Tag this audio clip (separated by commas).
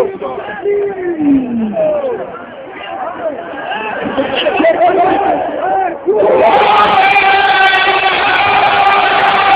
outside, urban or man-made, Speech